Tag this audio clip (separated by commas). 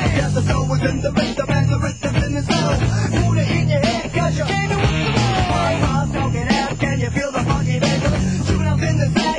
Funk, Music